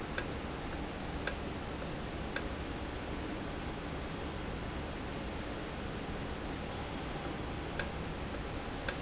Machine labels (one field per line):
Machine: valve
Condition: normal